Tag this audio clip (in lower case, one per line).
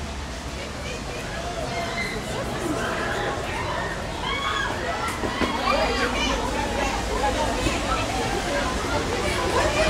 speech